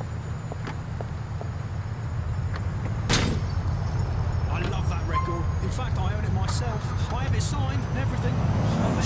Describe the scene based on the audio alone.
Someone takes a few steps and gets into a car